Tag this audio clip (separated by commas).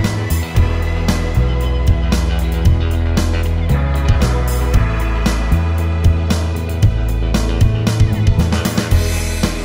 Music